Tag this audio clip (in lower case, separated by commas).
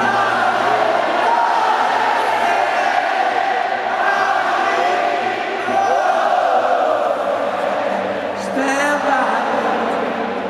singing